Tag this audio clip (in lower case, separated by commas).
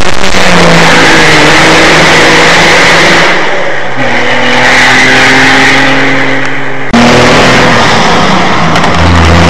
vehicle, race car, car